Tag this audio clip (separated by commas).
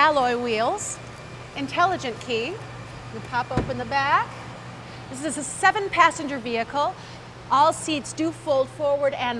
Speech